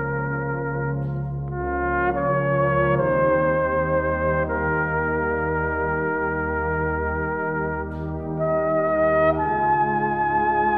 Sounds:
brass instrument, trumpet, musical instrument, playing trumpet

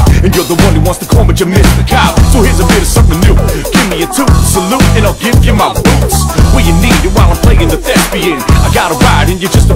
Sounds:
dance music, music, pop music

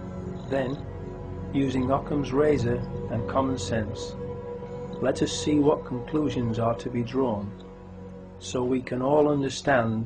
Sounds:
speech

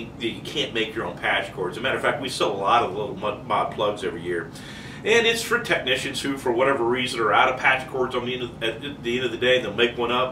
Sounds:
speech

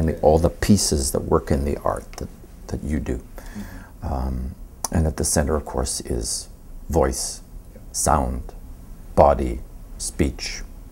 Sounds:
monologue, man speaking, speech

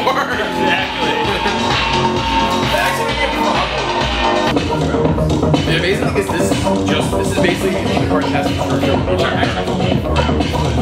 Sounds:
speech, music

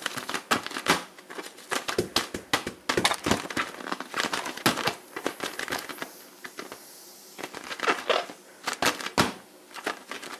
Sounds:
inside a small room

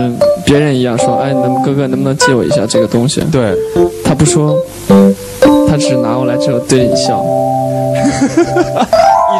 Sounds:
music, speech

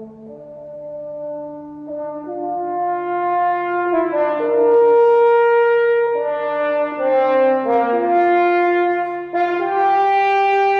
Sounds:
playing french horn

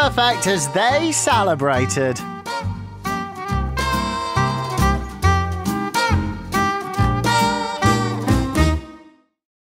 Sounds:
speech, music

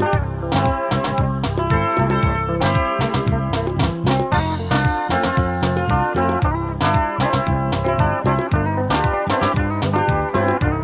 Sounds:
music

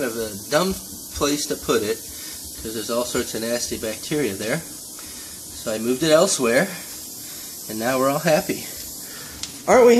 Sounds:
speech

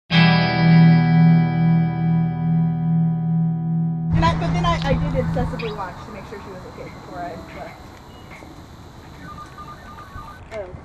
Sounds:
speech, outside, urban or man-made, music

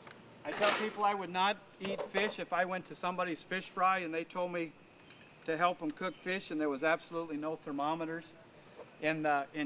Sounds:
speech

